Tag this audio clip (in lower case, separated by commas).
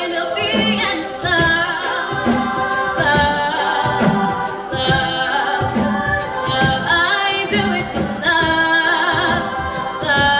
female singing, music, singing, crowd, choir, a capella, vocal music